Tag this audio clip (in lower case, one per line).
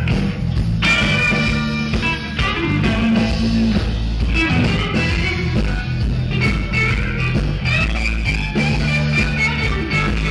blues
electric guitar
music
musical instrument
plucked string instrument
guitar
strum